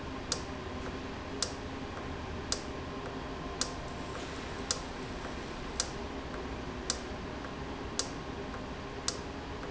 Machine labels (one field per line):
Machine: valve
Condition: normal